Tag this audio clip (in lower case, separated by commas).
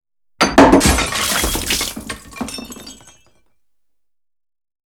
shatter, glass, liquid